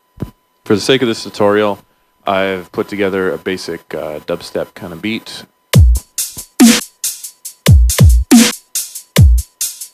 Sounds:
music
dubstep
speech

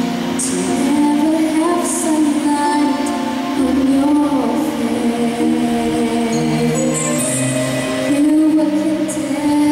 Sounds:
music
female singing

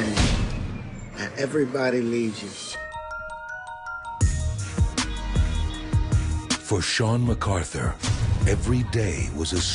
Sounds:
xylophone
glockenspiel
mallet percussion

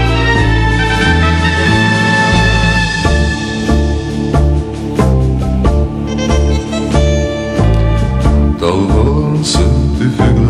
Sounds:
music

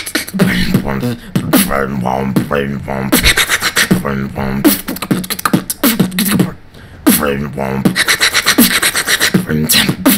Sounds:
beat boxing

